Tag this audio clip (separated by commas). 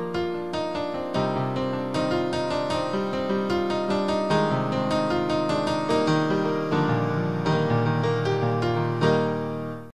Music